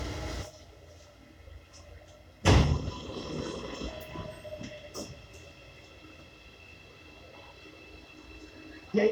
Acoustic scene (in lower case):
subway train